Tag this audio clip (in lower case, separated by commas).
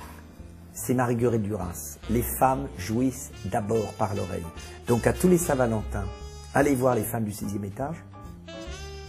music, speech